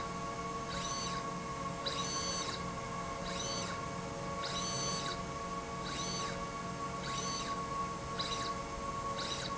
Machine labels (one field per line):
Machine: slide rail